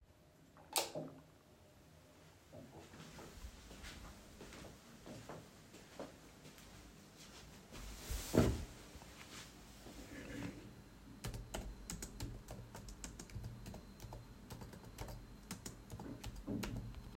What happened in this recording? I turned on the light, walked to my desk, sat down in my chair, cleared my throat and started typing on my keyboard.